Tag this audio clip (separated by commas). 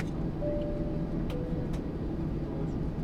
Aircraft, Vehicle, Fixed-wing aircraft